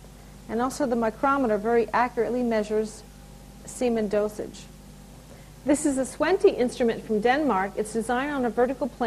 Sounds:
Speech

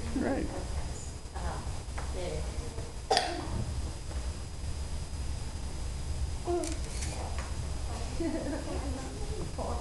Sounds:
Speech

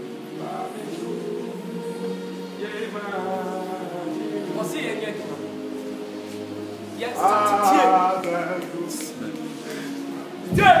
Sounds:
Choir

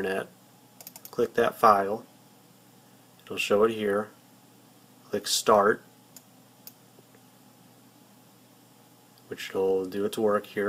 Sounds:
Speech, inside a small room

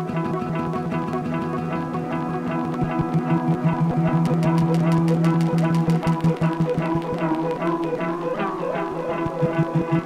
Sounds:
Music, Musical instrument, Sampler

